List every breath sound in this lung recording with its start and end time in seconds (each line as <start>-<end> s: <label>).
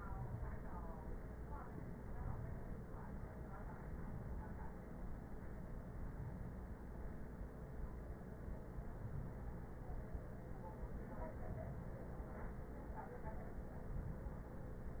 0.00-1.36 s: inhalation
1.77-3.15 s: inhalation
3.50-4.88 s: inhalation
5.54-6.90 s: inhalation
8.55-9.91 s: inhalation
10.90-12.26 s: inhalation
13.56-15.00 s: inhalation